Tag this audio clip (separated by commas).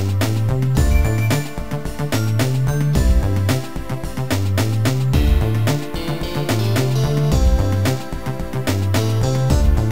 Music